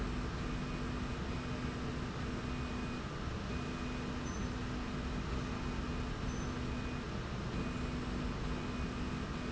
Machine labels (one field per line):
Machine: slide rail